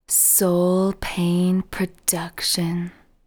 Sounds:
speech, human voice, female speech

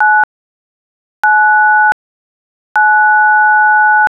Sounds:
alarm, telephone

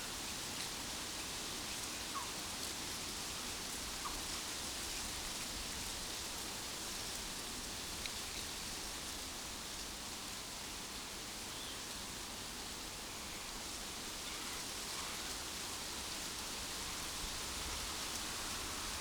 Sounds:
wind

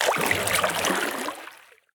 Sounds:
splatter, liquid

